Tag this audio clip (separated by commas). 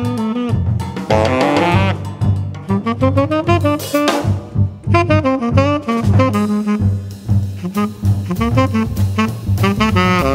Jazz, Music, Saxophone, Drum, Musical instrument, playing saxophone